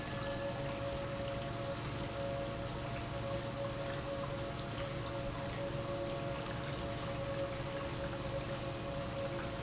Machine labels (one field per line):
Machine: pump